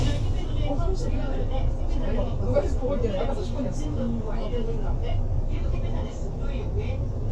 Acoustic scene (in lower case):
bus